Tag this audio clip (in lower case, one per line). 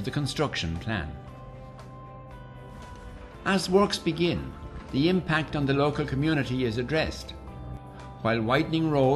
speech
music